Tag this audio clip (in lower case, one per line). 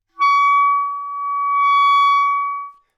wind instrument
musical instrument
music